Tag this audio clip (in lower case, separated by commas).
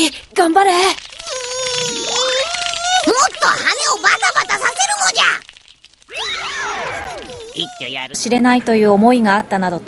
television, speech